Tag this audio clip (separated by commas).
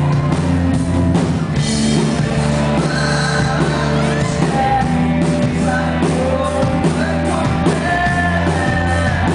Music, Exciting music